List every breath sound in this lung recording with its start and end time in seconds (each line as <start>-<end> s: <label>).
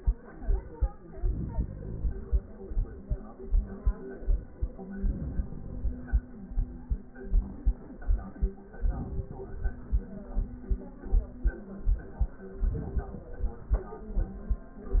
1.12-2.62 s: inhalation
4.79-6.29 s: inhalation
8.73-10.23 s: inhalation
12.56-14.06 s: inhalation